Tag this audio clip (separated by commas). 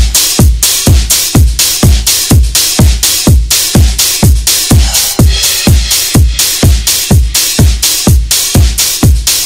Soundtrack music, Music, House music